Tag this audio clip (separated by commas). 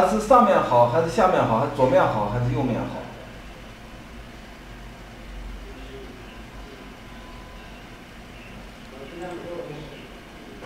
Speech